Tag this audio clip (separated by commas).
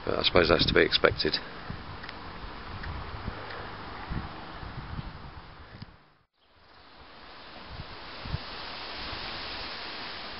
Speech